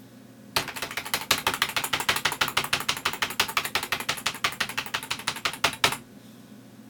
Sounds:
home sounds, Typing, Computer keyboard

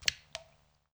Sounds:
Raindrop, Rain, Water

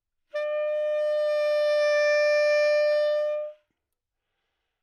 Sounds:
Wind instrument, Music, Musical instrument

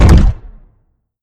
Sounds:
Explosion

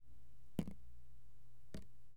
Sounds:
Raindrop, Drip, Rain, Liquid, Water

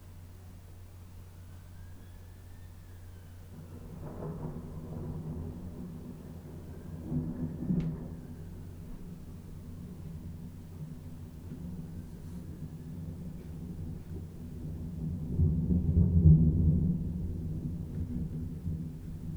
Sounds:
Thunder, Thunderstorm

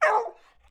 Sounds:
Bark, Domestic animals, Animal, Dog

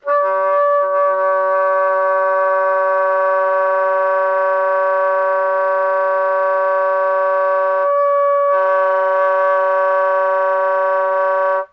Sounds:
Musical instrument, Wind instrument, Music

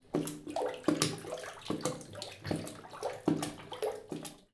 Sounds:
Water, Bathtub (filling or washing), Splash, Domestic sounds, Liquid

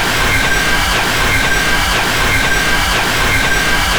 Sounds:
Mechanisms

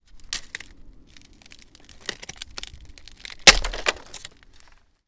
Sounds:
Crack, Wood

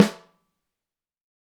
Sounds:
Musical instrument, Drum, Music, Snare drum, Percussion

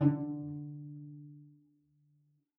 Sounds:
Musical instrument, Music, Bowed string instrument

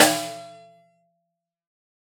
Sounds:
Drum, Percussion, Musical instrument, Snare drum, Music

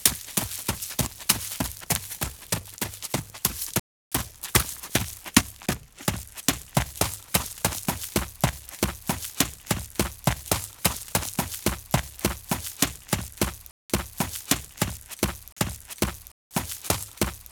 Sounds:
Run

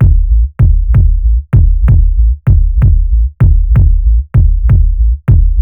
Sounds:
Percussion, Music, Musical instrument, Bass drum, Drum

